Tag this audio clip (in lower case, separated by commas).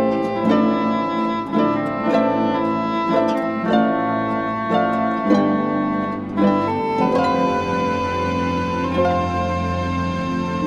harp, bowed string instrument, pizzicato